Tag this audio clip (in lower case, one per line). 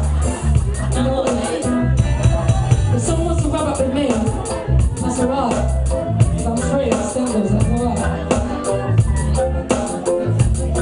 music
speech